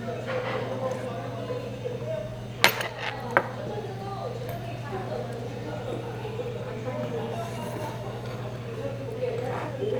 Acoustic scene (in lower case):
restaurant